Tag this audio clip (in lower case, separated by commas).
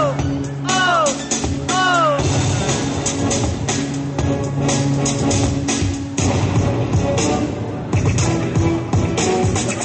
music